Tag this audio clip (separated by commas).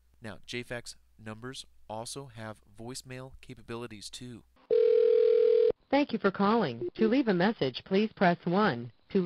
Speech